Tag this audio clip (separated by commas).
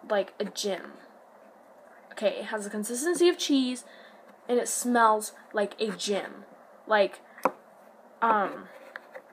inside a small room, Speech